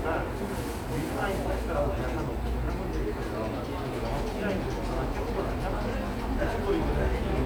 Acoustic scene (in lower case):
cafe